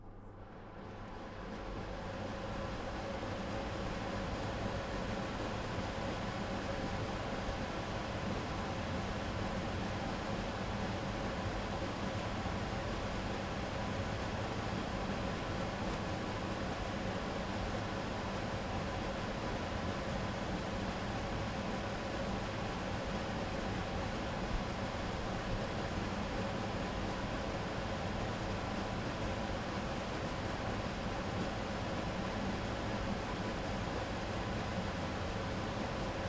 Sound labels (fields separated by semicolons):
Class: smoke extractor; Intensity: low